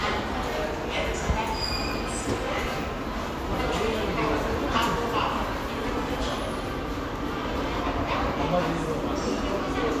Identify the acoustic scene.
subway station